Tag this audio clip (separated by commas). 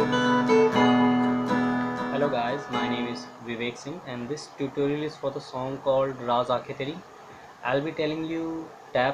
Musical instrument, Plucked string instrument, Music, Speech, Guitar